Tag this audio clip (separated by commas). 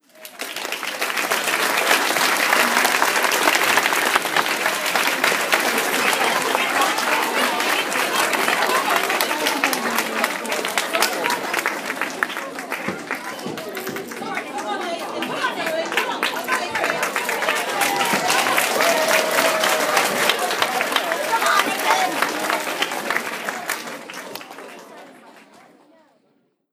Cheering, Applause, Human group actions